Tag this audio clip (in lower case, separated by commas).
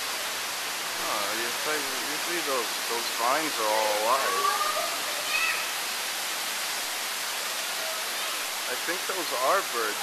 rain on surface, speech